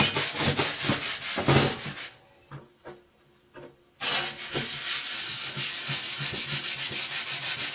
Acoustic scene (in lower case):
kitchen